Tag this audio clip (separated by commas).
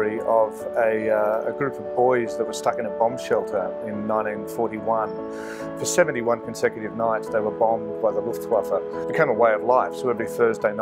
Speech, Music